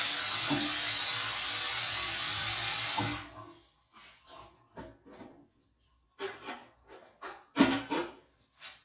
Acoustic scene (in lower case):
restroom